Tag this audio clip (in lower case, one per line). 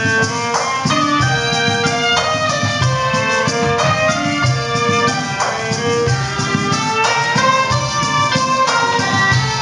music
musical instrument